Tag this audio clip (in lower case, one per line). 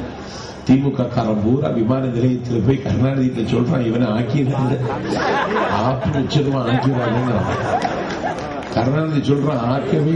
speech
male speech
narration